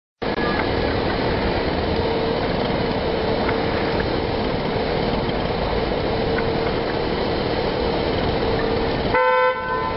A vehicle engine runs and a single horn honks